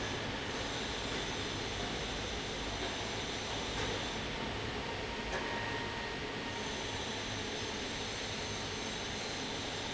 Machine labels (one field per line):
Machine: fan